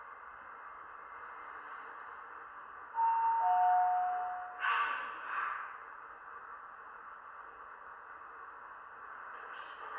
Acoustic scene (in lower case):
elevator